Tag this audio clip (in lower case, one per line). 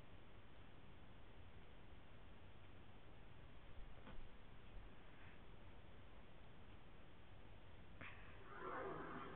silence